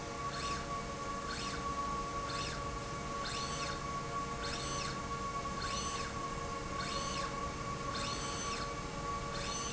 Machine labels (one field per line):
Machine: slide rail